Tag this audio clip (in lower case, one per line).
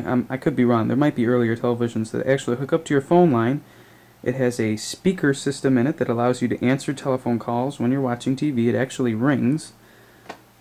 speech